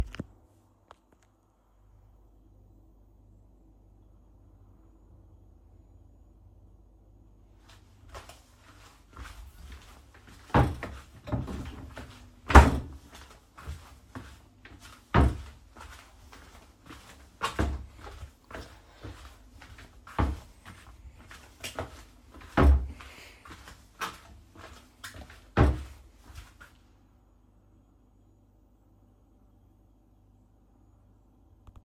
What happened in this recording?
I held the phone while walking down the hall. I opened and closed a few wardrobe drawers while I was walking.